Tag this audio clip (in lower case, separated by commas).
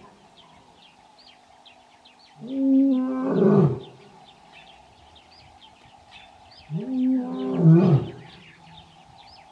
lions roaring